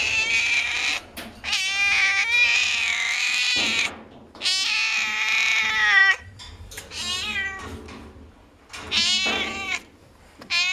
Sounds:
cat caterwauling

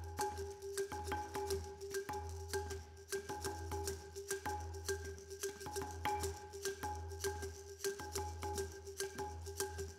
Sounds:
Percussion, Music

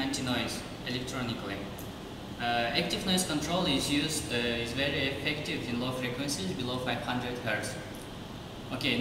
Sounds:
Speech

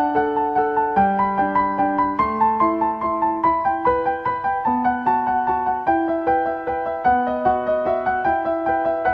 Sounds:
Music

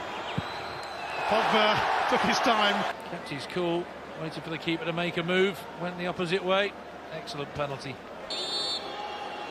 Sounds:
Speech

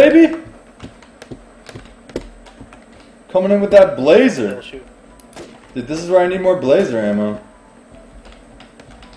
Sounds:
Speech

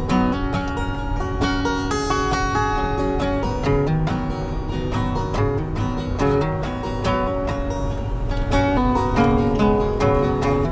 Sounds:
Vehicle, Music

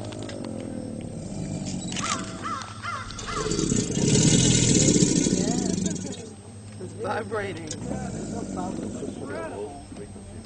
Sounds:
crocodiles hissing

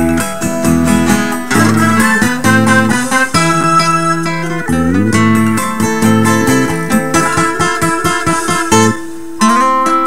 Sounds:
Music

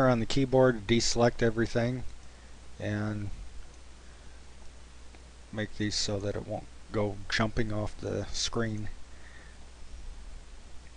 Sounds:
Speech

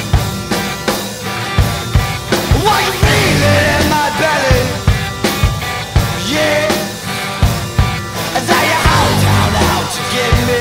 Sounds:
Music

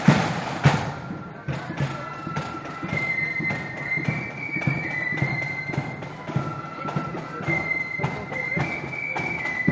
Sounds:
Music, Speech

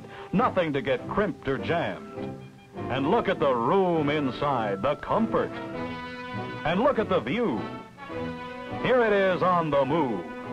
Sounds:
Music, Speech

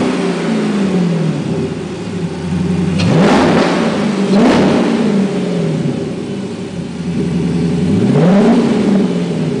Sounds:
vroom, Medium engine (mid frequency), Engine, Vehicle

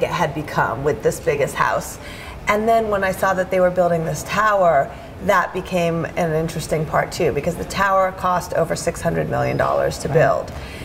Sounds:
Speech

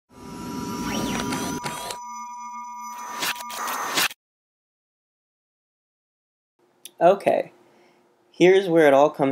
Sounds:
Music, Speech

